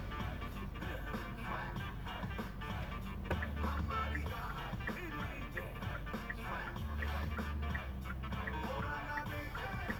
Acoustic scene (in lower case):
car